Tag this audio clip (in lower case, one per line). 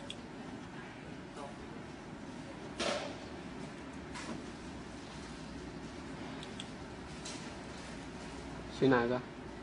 speech